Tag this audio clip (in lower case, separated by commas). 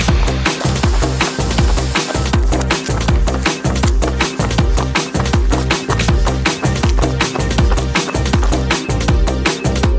music, outside, rural or natural, run